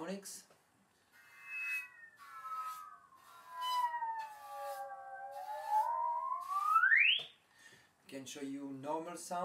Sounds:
speech

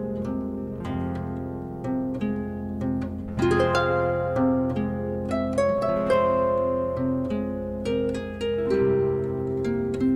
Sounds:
music, inside a small room

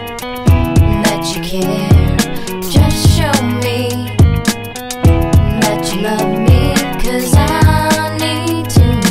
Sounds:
music, theme music

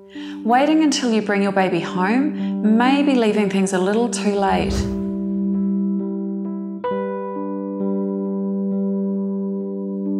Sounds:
music, speech

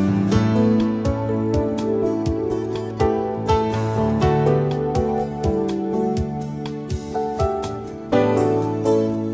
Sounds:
music

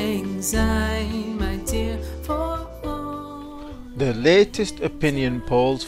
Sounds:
speech, music

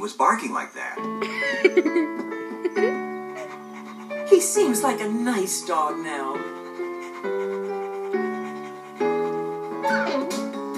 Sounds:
speech, music, dog

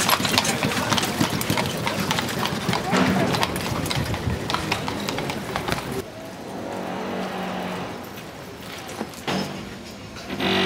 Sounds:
speech, footsteps

